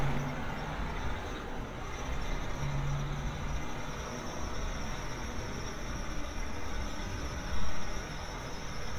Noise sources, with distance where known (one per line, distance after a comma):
large-sounding engine, near